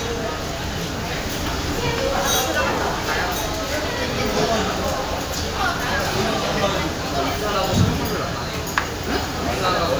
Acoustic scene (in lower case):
crowded indoor space